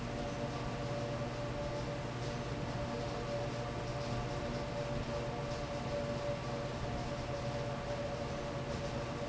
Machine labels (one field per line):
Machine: fan